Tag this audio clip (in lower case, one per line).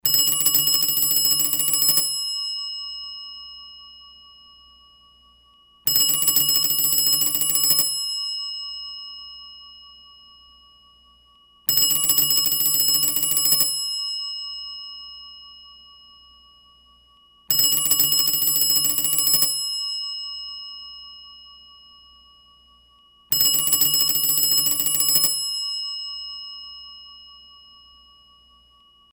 alarm
telephone